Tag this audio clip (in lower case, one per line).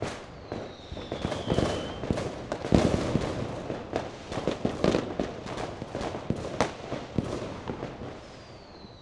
explosion
fireworks